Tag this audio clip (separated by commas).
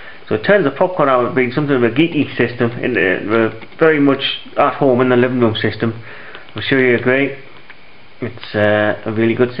Speech